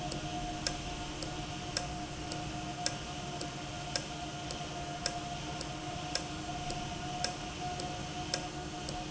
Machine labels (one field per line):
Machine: valve